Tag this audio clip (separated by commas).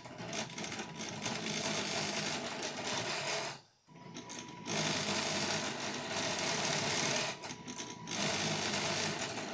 printer printing